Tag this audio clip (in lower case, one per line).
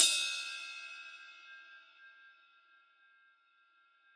music
musical instrument
percussion
cymbal
crash cymbal